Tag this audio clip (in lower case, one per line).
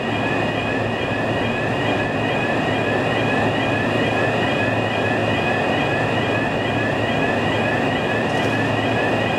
vehicle